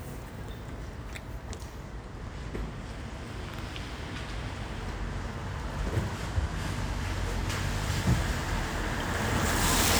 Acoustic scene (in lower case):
residential area